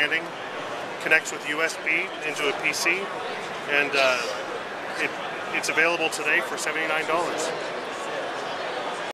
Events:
[0.00, 0.21] male speech
[0.00, 9.10] crowd
[1.00, 3.04] male speech
[3.67, 4.40] male speech
[4.92, 5.19] male speech
[5.51, 7.55] male speech

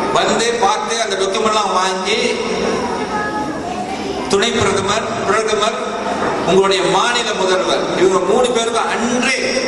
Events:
[0.00, 9.65] background noise
[0.00, 9.65] crowd
[0.11, 2.34] narration
[0.12, 2.32] man speaking
[2.76, 4.01] woman speaking
[4.26, 4.99] man speaking
[4.26, 4.99] narration
[5.21, 5.72] man speaking
[5.21, 5.73] narration
[6.02, 6.43] laughter
[6.43, 7.79] narration
[6.44, 7.77] man speaking
[7.95, 9.65] narration
[7.96, 9.65] man speaking

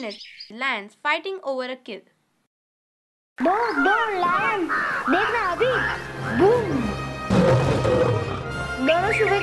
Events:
[0.00, 2.45] background noise
[1.01, 1.99] woman speaking
[4.99, 9.42] music
[6.14, 6.39] caw
[7.26, 8.36] roaring cats
[8.75, 9.42] child speech
[8.78, 9.42] bird call

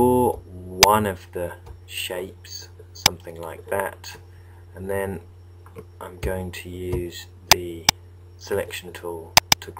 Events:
[0.00, 0.32] man speaking
[0.00, 9.75] mechanisms
[0.27, 0.33] tick
[0.79, 0.87] tick
[0.79, 1.56] man speaking
[1.63, 1.72] tick
[1.85, 2.23] man speaking
[2.21, 2.27] tick
[2.40, 2.47] tick
[2.41, 2.69] man speaking
[3.00, 3.11] tick
[3.04, 4.19] man speaking
[3.22, 3.43] tick
[4.75, 5.24] man speaking
[5.65, 5.81] tick
[6.00, 7.28] man speaking
[6.20, 6.27] tick
[6.89, 6.97] tick
[7.46, 7.84] man speaking
[7.51, 7.61] tick
[7.86, 7.95] tick
[8.45, 9.35] man speaking
[8.63, 8.71] tick
[8.89, 8.96] tick
[9.33, 9.38] tick
[9.49, 9.62] tick

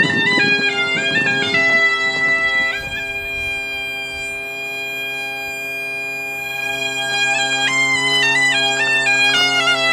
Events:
[0.00, 1.75] generic impact sounds
[0.00, 9.92] music
[2.24, 2.53] generic impact sounds
[7.11, 7.22] generic impact sounds
[8.74, 8.87] walk
[9.02, 9.10] walk

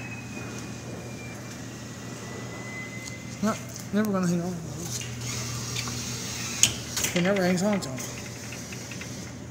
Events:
[0.03, 9.50] mechanisms
[3.34, 3.53] man speaking
[3.79, 4.48] man speaking
[6.84, 7.99] man speaking

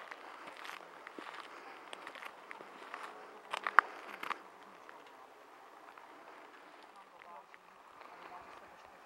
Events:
[0.00, 0.77] footsteps
[0.00, 9.05] medium engine (mid frequency)
[0.00, 9.05] wind
[0.13, 0.50] breathing
[0.76, 1.16] breathing
[1.03, 1.45] footsteps
[1.45, 1.86] breathing
[1.86, 2.24] footsteps
[2.45, 2.61] footsteps
[2.80, 3.06] footsteps
[3.49, 3.80] tick
[3.50, 3.79] footsteps
[3.75, 4.25] breathing
[3.94, 4.12] footsteps
[4.16, 4.30] tick
[4.21, 4.33] footsteps
[4.77, 6.10] man speaking
[5.87, 5.93] tick
[6.79, 7.04] tick
[6.88, 7.42] man speaking
[7.16, 7.58] tick
[7.86, 8.63] man speaking
[7.95, 8.04] tick
[8.17, 8.30] tick
[8.53, 8.57] tick
[8.74, 8.82] tick

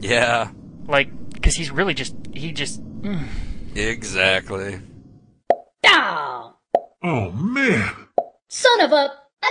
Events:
[0.00, 5.42] wind
[2.18, 2.30] generic impact sounds
[2.95, 3.81] sigh
[8.13, 8.32] plop
[8.48, 9.25] male speech

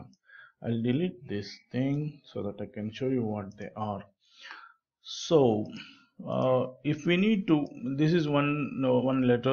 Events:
[0.00, 9.52] background noise
[0.06, 0.16] clicking
[0.13, 0.58] breathing
[0.55, 1.12] man speaking
[1.24, 2.15] man speaking
[1.86, 1.97] clicking
[2.32, 4.09] man speaking
[3.45, 3.63] clicking
[4.13, 4.77] breathing
[5.01, 5.66] man speaking
[5.58, 5.83] clicking
[5.62, 6.21] breathing
[6.15, 9.52] man speaking
[6.24, 6.49] clicking
[7.41, 7.71] clicking

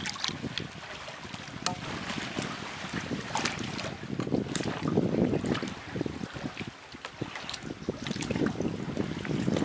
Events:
[0.00, 0.88] wind noise (microphone)
[0.00, 9.64] water
[0.00, 9.64] wind
[0.51, 0.61] tick
[1.09, 2.56] wind noise (microphone)
[1.59, 1.68] tick
[2.79, 5.74] wind noise (microphone)
[4.08, 4.26] generic impact sounds
[4.46, 4.58] tick
[5.85, 6.69] wind noise (microphone)
[6.86, 7.11] generic impact sounds
[6.89, 7.28] wind noise (microphone)
[7.46, 9.64] wind noise (microphone)
[7.67, 7.93] bird vocalization
[9.06, 9.23] bird vocalization

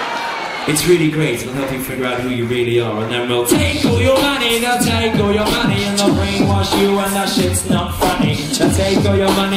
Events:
[0.00, 9.55] inside a large room or hall
[0.01, 9.55] music
[0.10, 0.81] male singing
[0.99, 1.71] male singing
[1.97, 3.10] male singing
[3.32, 4.23] male singing
[4.52, 5.23] male singing
[5.47, 6.30] male singing
[6.53, 7.22] male singing
[7.44, 8.85] male singing
[9.09, 9.55] male singing

